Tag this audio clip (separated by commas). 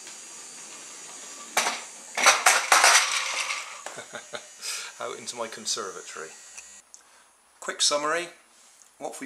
Speech, inside a small room